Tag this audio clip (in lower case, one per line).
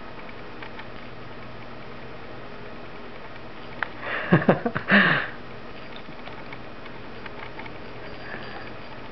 animal
inside a small room
pets